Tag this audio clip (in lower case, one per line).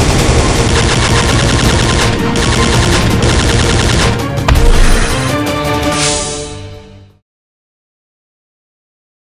music